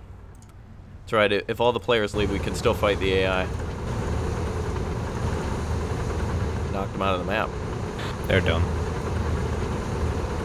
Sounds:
Speech, Vehicle

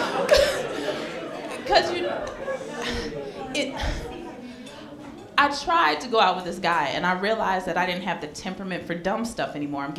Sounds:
Speech

